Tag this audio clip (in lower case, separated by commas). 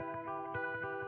plucked string instrument, electric guitar, music, musical instrument, guitar